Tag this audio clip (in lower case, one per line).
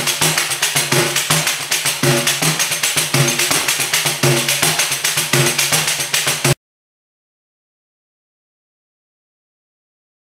playing tambourine